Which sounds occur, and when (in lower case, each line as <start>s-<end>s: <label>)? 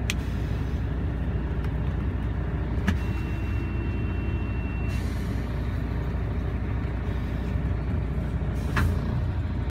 0.0s-9.7s: car
0.1s-0.1s: tick
0.2s-0.9s: surface contact
1.6s-1.7s: generic impact sounds
1.8s-1.9s: generic impact sounds
2.2s-2.3s: generic impact sounds
2.8s-3.6s: surface contact
2.8s-3.0s: generic impact sounds
3.0s-5.0s: honking
4.9s-5.9s: surface contact
7.0s-7.5s: surface contact
8.6s-9.0s: surface contact
8.7s-8.8s: generic impact sounds